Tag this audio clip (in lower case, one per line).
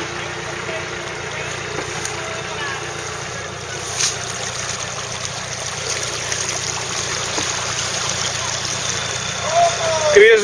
stream
speech